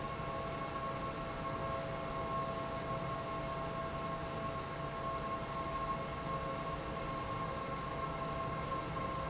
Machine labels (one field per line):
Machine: pump